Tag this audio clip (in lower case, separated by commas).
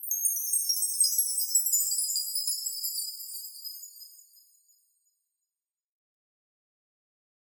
chime, bell